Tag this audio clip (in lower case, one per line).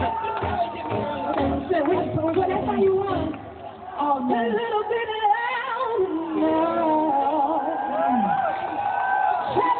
speech
music